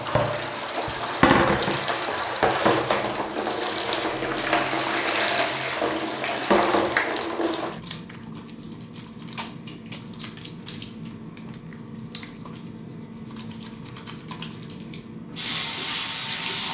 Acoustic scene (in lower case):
restroom